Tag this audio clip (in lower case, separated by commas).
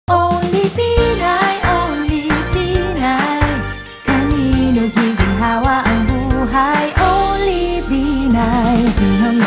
music